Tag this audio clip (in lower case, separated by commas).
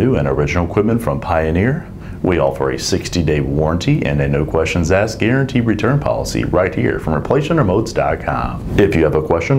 speech